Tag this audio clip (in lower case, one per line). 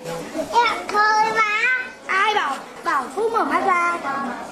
human group actions